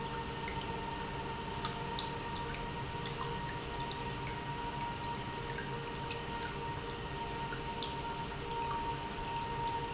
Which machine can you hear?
pump